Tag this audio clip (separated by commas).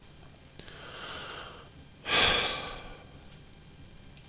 Human voice, Sigh, Respiratory sounds, Breathing